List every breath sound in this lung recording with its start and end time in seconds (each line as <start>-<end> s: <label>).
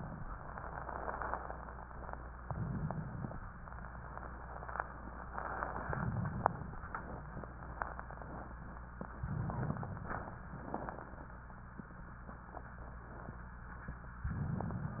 2.43-3.37 s: inhalation
5.83-6.76 s: inhalation
9.24-10.41 s: inhalation
10.57-11.45 s: exhalation
10.57-11.45 s: crackles